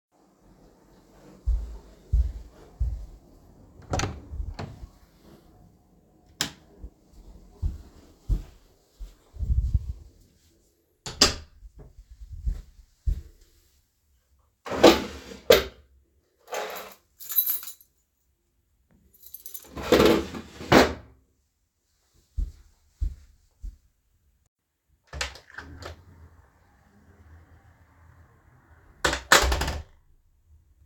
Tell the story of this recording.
I walked to my home entryway, opened the inner door, stepped inside and closed the inner door. I then walked to my key drawer, opened it, retrieved my keys, then closed it, and proceeded to exit.